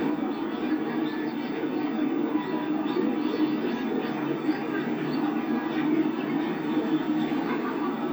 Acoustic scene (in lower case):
park